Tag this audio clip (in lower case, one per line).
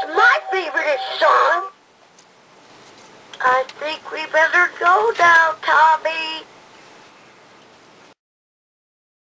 speech